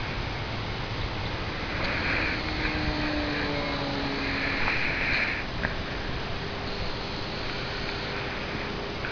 The sound of breathing and in the background, the faint sound of an aircraft going by